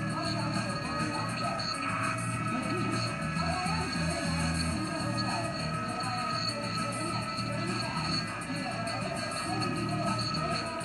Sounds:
music, speech

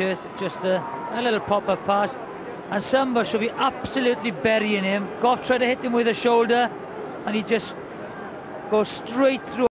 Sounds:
speech

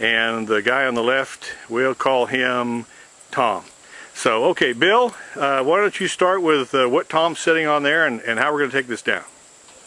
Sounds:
rustling leaves, speech

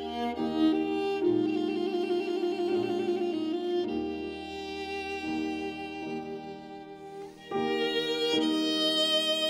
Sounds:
violin, music, musical instrument

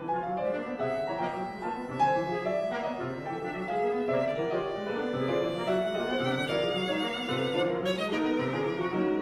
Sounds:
music, violin, musical instrument

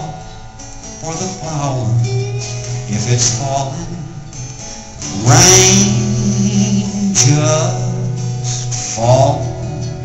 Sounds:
music

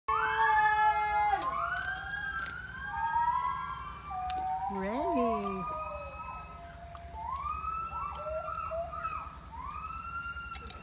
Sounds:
gibbon howling

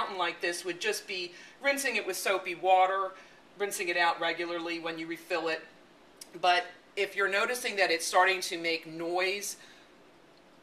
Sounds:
speech

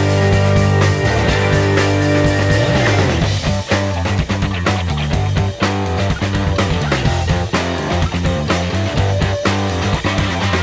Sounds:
funk, guitar, music, strum, musical instrument, plucked string instrument

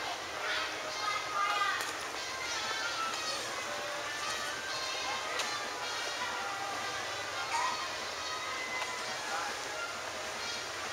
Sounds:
music, speech

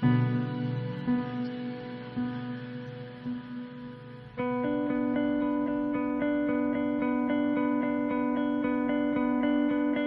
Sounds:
music

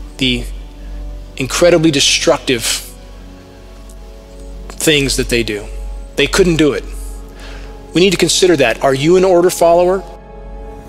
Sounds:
music, speech

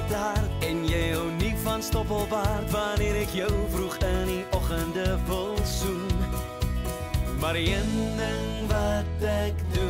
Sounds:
music

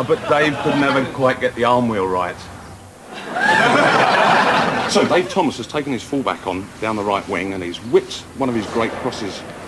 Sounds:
speech

